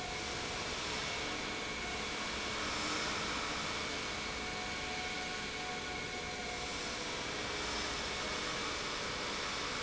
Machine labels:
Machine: pump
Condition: normal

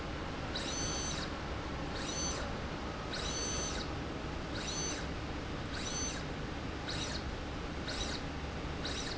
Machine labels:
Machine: slide rail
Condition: abnormal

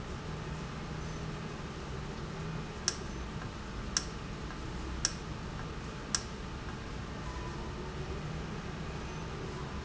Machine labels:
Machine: valve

